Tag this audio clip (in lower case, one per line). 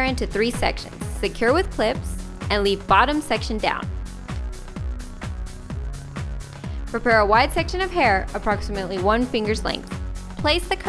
speech
music